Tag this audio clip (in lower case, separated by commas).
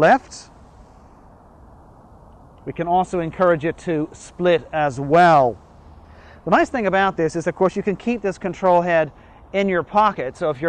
speech